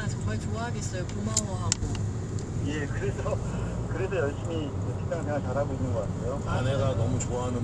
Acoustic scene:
car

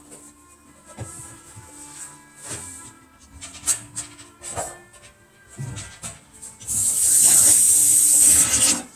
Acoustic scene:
kitchen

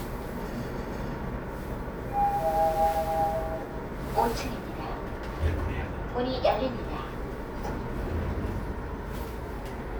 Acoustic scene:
elevator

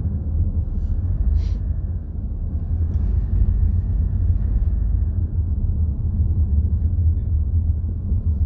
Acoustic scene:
car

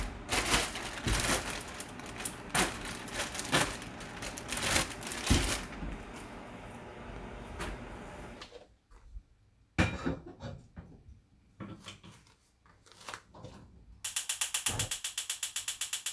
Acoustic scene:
kitchen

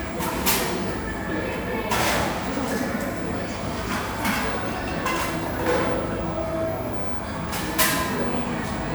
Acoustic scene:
cafe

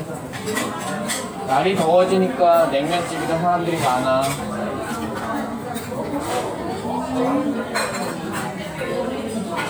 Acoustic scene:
restaurant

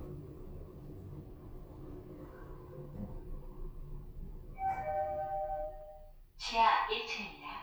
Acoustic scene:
elevator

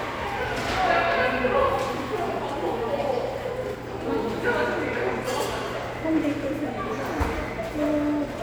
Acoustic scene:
subway station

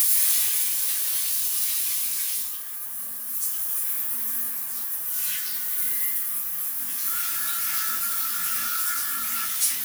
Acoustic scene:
restroom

